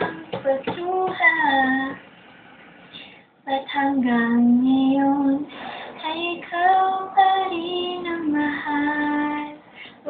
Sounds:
female singing

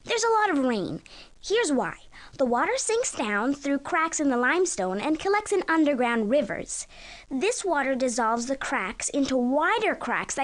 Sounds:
speech

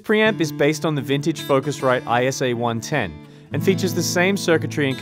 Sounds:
speech, music

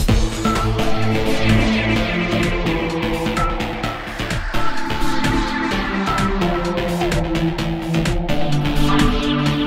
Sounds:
music

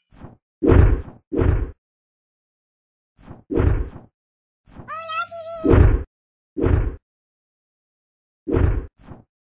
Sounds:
sound effect

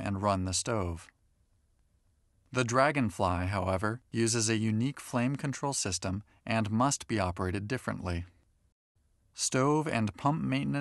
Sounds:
speech

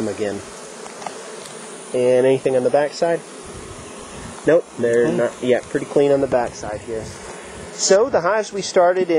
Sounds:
bee or wasp, insect, housefly

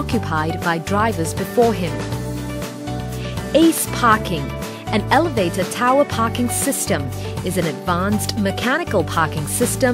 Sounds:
music, speech

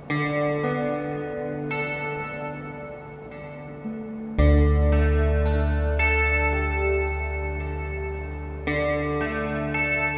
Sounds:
music

